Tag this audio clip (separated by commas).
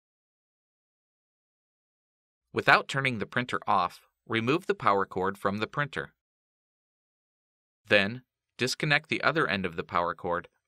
Speech